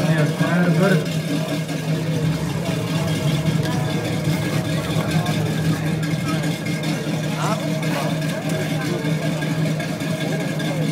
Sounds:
Speech

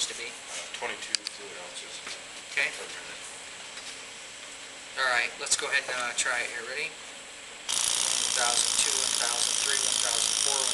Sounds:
Speech

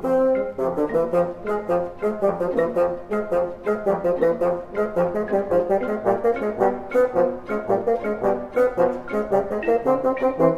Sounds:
playing bassoon

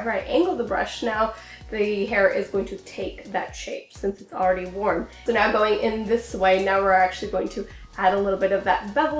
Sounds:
hair dryer drying

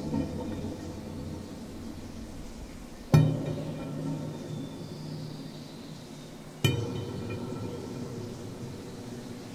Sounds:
Echo

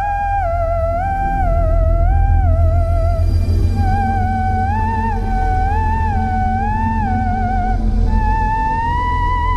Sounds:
Theremin, Music

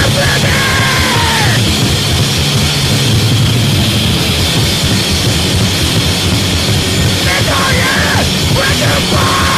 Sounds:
Cacophony, Music

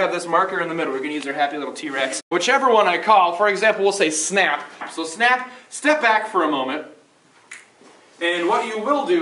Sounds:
Speech

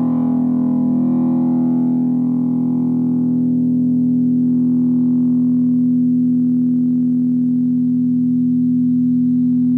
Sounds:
Effects unit, inside a small room

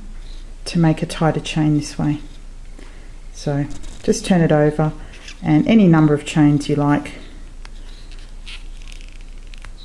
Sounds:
inside a small room, Speech

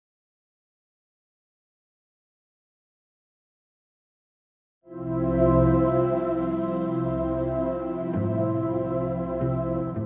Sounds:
New-age music, Music

